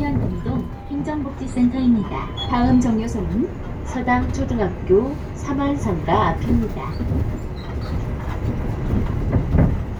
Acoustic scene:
bus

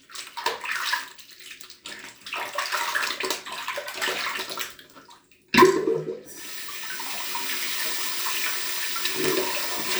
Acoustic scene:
restroom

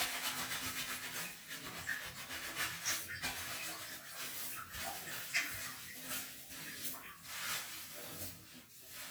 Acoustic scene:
restroom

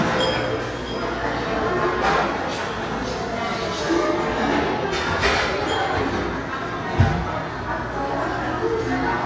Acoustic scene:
restaurant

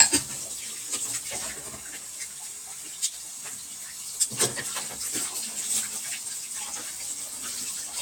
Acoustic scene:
kitchen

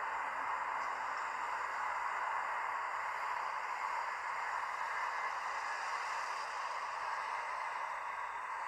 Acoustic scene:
street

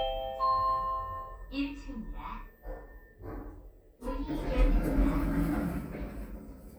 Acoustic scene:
elevator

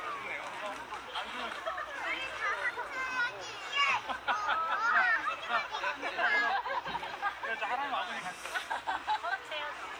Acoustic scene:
park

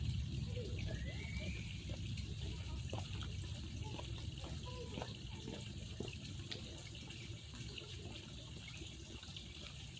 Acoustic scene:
park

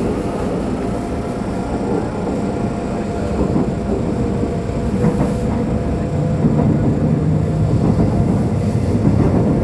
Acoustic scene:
subway train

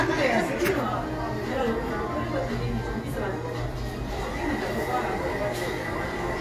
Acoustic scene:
cafe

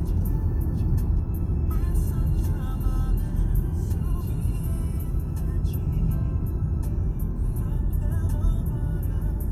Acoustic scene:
car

